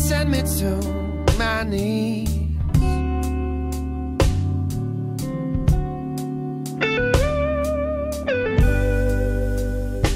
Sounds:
slide guitar, Music

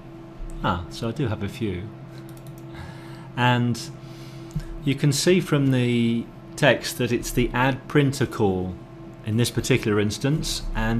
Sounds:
Speech

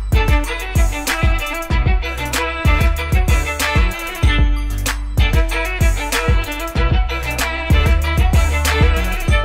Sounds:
Violin, Musical instrument, Music

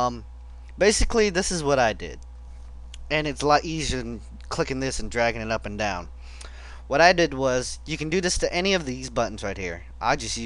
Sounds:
Speech

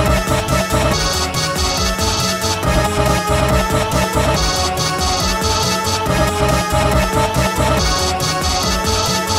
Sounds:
Music

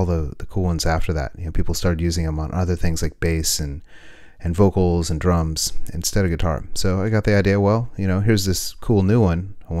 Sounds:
Speech

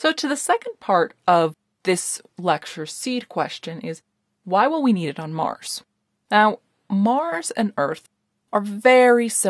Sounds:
monologue

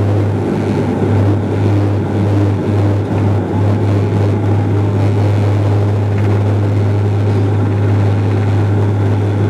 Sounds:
Aircraft, Propeller, Vehicle

